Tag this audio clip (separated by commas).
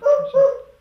pets, Animal, Dog